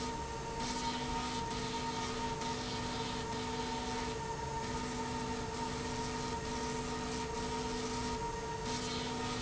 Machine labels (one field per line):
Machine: slide rail